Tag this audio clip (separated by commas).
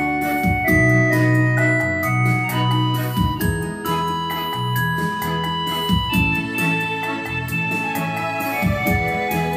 playing electronic organ